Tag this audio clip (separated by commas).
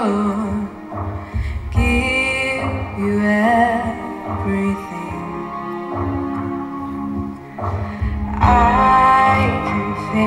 Music, Female singing